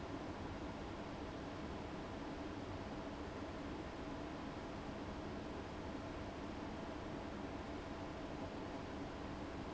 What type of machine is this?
fan